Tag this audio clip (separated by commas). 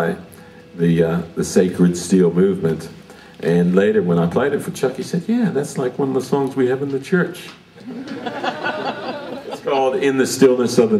Speech